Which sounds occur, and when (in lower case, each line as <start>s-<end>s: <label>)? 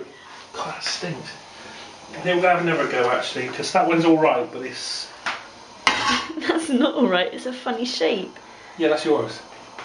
0.0s-0.4s: breathing
0.0s-9.8s: mechanisms
0.5s-9.5s: conversation
0.6s-1.3s: male speech
0.8s-0.9s: tick
1.2s-1.4s: breathing
1.6s-1.9s: breathing
1.8s-1.8s: tick
2.2s-5.1s: male speech
3.0s-3.0s: tick
3.5s-3.6s: tick
5.2s-5.5s: generic impact sounds
5.8s-6.3s: generic impact sounds
5.8s-5.9s: tick
6.3s-6.8s: laughter
6.3s-8.3s: female speech
8.4s-8.4s: tick
8.7s-9.4s: male speech
9.8s-9.8s: tick